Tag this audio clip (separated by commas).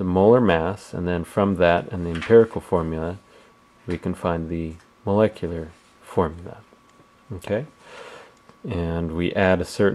Speech